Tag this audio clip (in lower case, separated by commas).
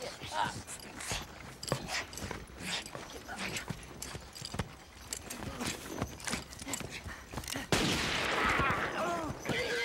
animal